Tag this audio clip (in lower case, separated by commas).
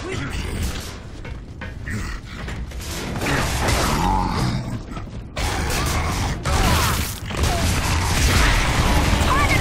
music, speech